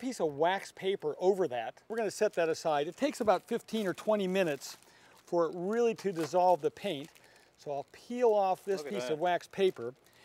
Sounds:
speech

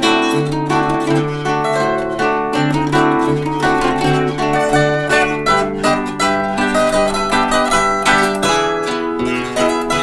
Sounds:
playing zither

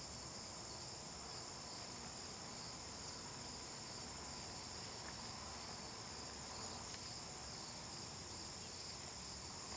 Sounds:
insect

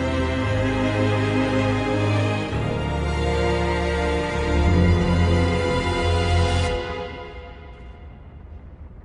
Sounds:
music, scary music

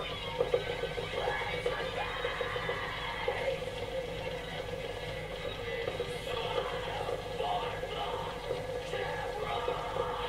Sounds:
speech, tap

